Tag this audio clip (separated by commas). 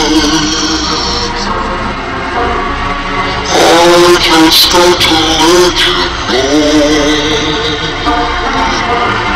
Music, Male singing, Synthetic singing